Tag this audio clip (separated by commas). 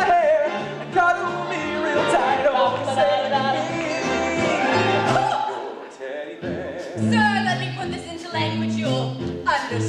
Speech, Music